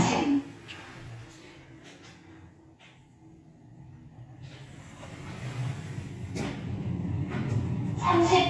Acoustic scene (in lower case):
elevator